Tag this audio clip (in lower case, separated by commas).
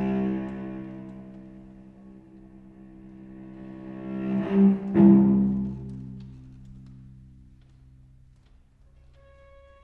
bowed string instrument, cello, double bass